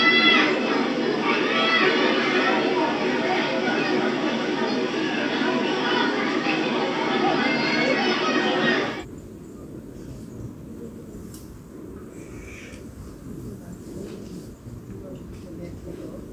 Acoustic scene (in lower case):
park